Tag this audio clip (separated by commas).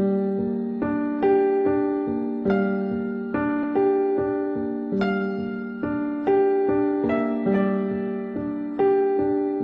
Music